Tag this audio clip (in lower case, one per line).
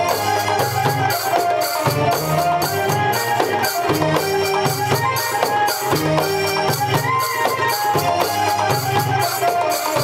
music